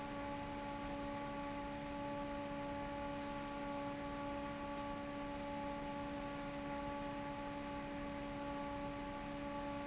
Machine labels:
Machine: fan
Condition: normal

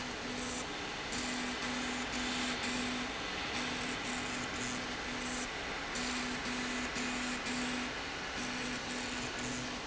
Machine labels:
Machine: slide rail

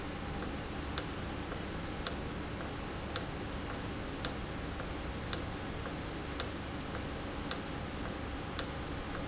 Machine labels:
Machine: valve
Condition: normal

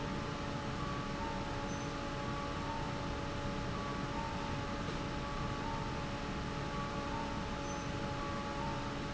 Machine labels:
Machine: fan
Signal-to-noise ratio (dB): -6 dB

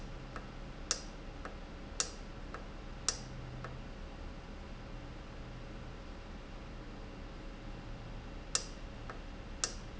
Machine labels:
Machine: valve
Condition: normal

